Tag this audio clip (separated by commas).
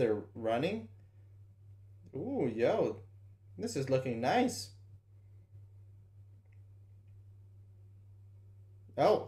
Speech, Silence